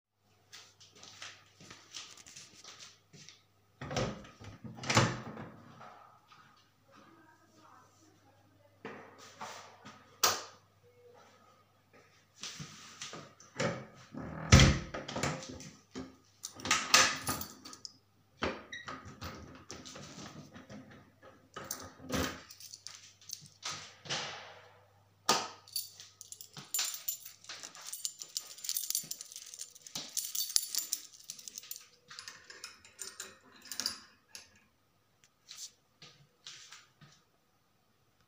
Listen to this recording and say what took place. I opened the door, turned on the light, locked the door, placed the key in keyboard